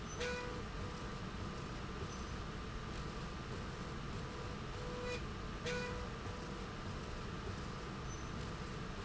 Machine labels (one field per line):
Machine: slide rail